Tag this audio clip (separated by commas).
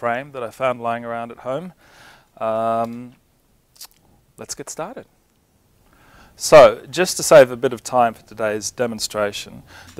Speech